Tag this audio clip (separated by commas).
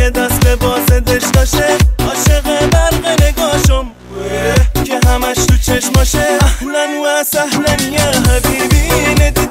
Music